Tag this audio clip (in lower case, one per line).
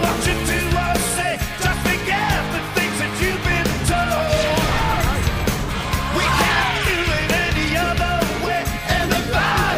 bellow
music
whoop